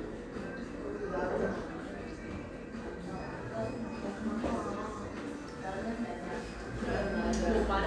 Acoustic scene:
cafe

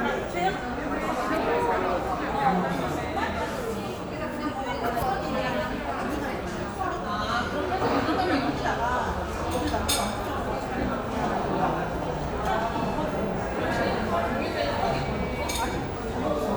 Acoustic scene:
crowded indoor space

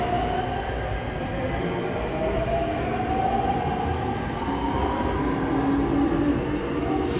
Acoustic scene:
subway station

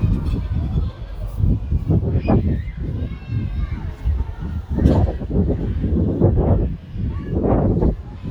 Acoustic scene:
residential area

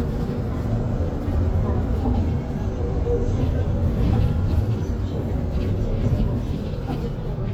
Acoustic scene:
bus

